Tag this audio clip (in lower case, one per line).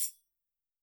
musical instrument
tambourine
percussion
music